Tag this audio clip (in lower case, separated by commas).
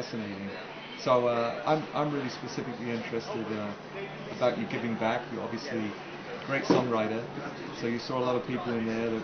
speech